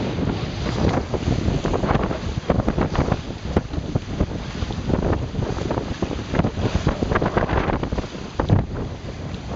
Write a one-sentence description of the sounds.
A piece of fabric is flapping in the wind